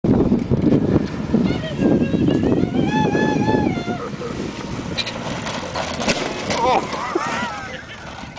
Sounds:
car
vehicle

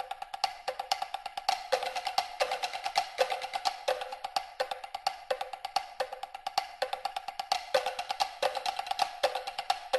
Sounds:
music
percussion
wood block

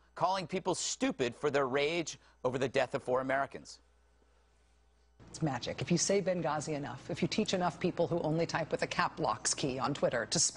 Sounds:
speech

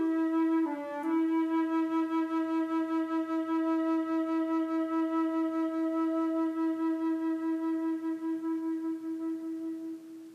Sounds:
woodwind instrument
flute

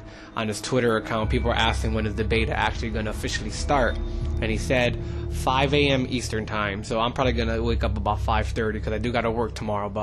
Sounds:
music
speech

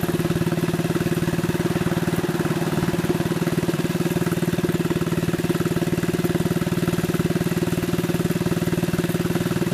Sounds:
vehicle

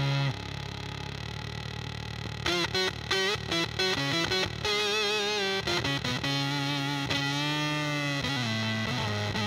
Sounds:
music
cacophony

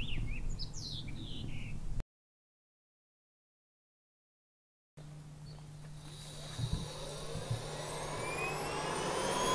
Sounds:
bird
bird call
chirp

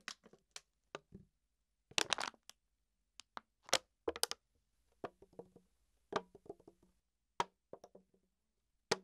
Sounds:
plastic bottle crushing

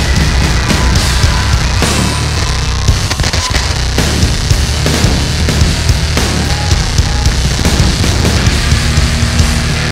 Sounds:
heavy metal
music
inside a public space

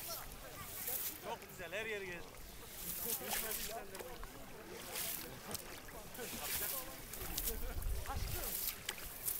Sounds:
speech

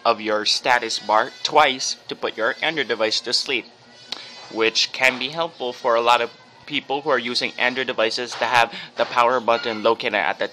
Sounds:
speech

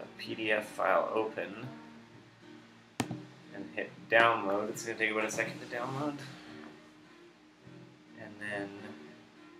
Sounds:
speech
music

